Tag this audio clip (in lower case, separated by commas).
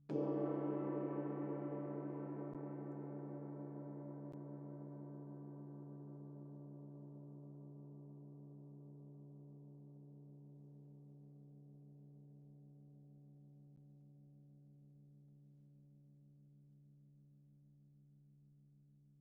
gong, percussion, music, musical instrument